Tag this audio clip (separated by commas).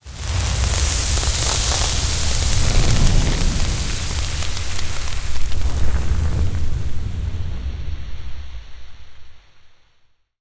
Fire, Crackle